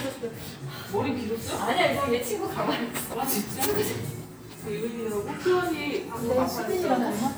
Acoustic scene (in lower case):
cafe